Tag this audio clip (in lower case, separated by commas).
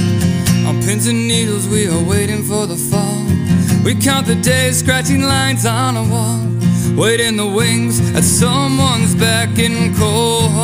music